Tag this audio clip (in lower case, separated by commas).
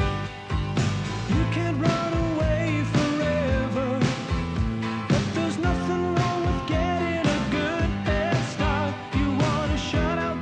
rock and roll, music